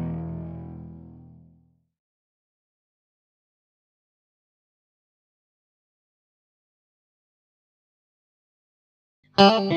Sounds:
distortion, music

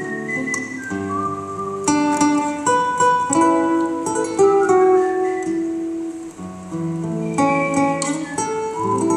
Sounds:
orchestra, music

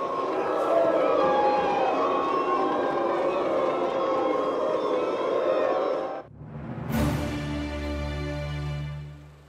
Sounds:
people booing

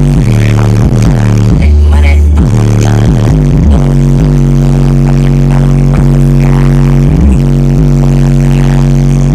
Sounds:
music

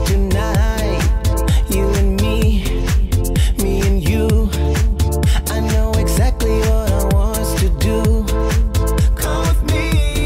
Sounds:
exciting music, music

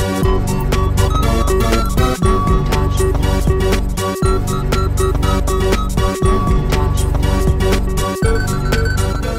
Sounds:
music

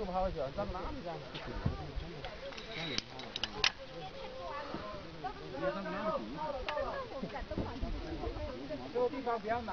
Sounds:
speech

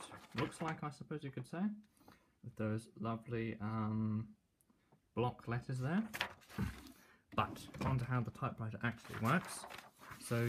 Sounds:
typing on typewriter

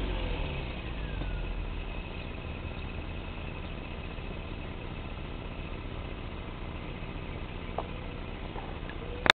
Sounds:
accelerating, car, vehicle

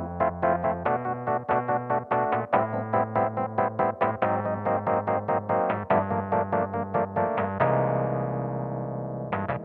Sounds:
keyboard (musical), piano, electric piano

